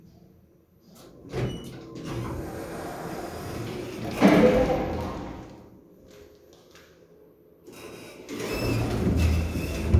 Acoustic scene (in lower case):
elevator